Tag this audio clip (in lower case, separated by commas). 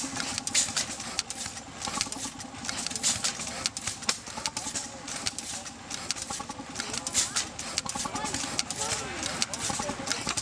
speech, engine